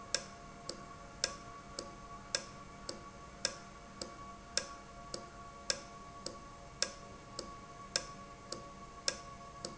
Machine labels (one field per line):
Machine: valve